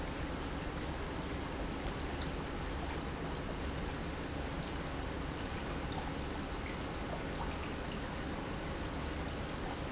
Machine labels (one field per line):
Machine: pump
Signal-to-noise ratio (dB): -6 dB